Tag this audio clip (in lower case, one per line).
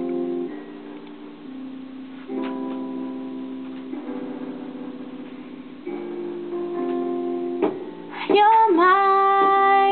female singing
music